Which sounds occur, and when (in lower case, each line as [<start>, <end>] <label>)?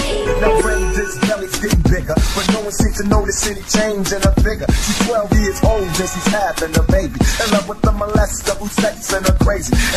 [0.00, 9.95] music
[0.35, 0.51] male singing
[0.54, 2.18] rapping
[2.31, 4.64] rapping
[4.83, 7.18] rapping
[7.34, 9.95] rapping